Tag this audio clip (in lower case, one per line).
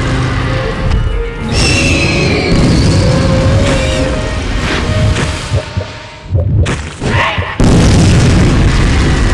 music
pop